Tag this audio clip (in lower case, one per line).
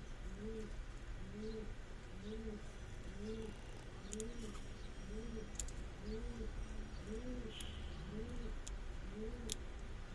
chirp
bird call
bird